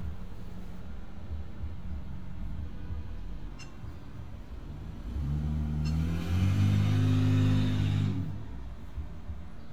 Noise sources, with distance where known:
medium-sounding engine, near

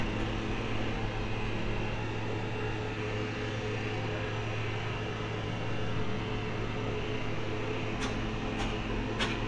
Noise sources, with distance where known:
unidentified impact machinery, far

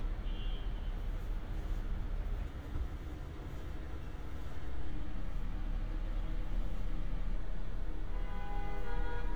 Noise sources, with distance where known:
car horn

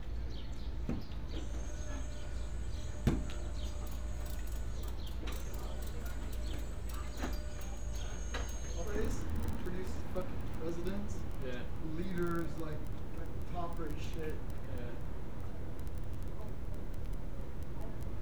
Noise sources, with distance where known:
person or small group talking, near

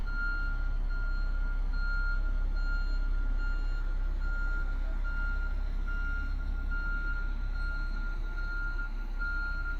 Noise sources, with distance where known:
reverse beeper, near

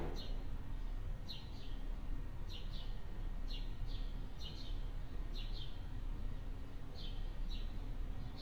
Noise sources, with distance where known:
background noise

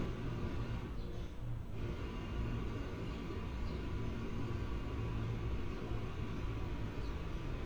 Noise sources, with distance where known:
jackhammer, far

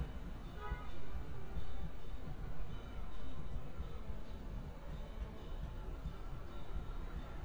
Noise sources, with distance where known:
car horn, near
music from a fixed source

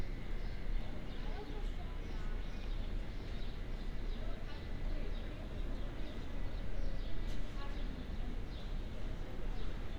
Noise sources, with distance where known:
person or small group talking, far

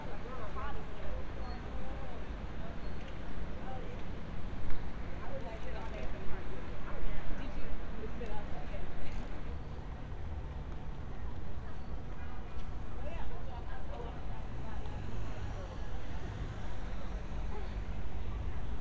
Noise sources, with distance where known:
person or small group talking

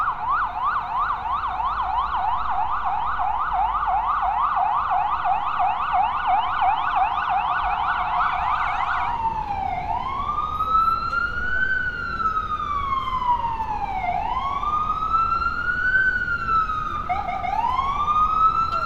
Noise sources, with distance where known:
siren, near

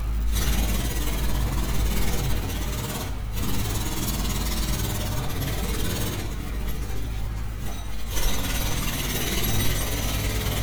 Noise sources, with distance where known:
jackhammer, near

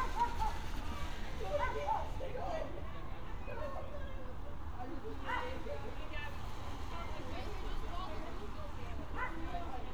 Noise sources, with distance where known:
person or small group talking, near
dog barking or whining, far

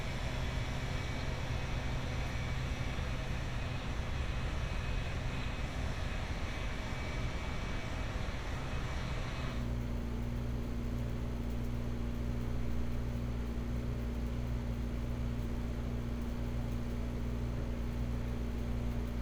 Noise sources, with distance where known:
engine of unclear size

